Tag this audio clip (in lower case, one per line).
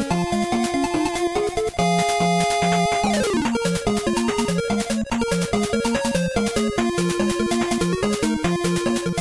music